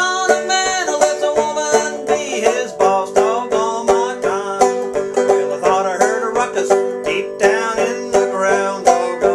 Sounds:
Music

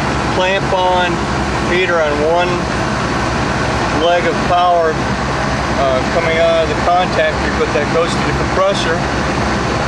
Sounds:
Speech

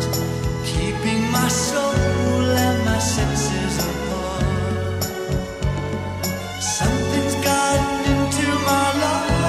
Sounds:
Music, Soul music

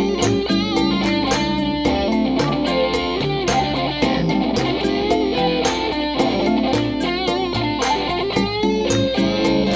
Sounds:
Guitar, Electric guitar, Music, Musical instrument

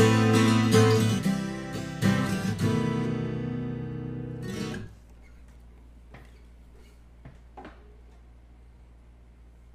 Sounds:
Plucked string instrument, Acoustic guitar, Strum, Electric guitar, Guitar, Music, Musical instrument

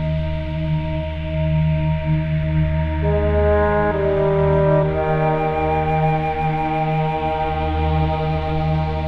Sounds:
Ambient music

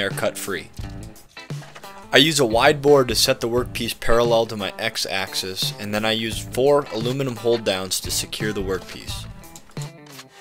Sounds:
Music, Speech

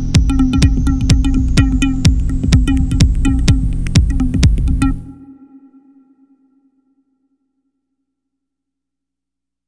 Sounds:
Music, Electronic music, Techno

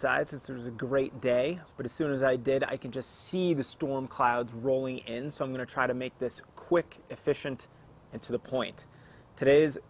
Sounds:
Speech, outside, urban or man-made

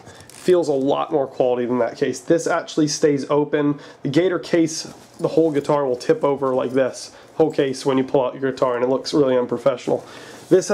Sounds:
Speech

